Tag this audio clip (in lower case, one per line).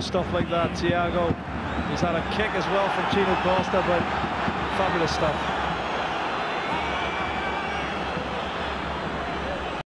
trickle
speech